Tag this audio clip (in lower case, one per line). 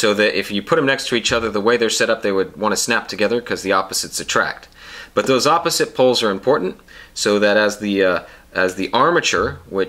speech